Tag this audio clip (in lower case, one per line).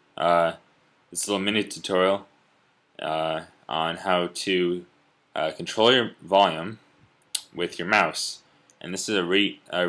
speech